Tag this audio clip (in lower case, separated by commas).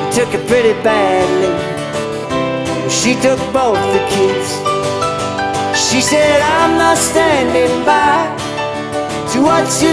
music